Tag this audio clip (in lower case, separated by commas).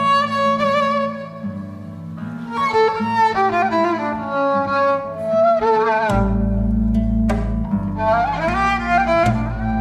bowed string instrument, music